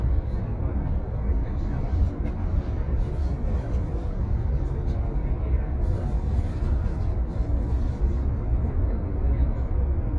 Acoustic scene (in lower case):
bus